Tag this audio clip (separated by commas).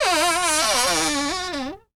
Door, home sounds, Cupboard open or close